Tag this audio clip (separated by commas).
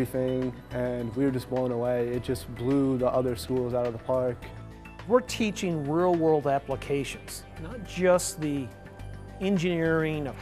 Speech, Music